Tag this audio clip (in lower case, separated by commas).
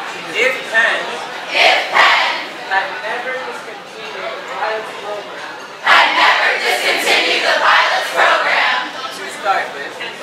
speech